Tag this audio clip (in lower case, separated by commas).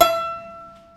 bowed string instrument, music, musical instrument